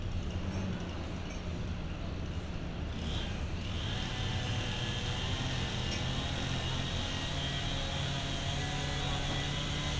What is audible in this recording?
unidentified powered saw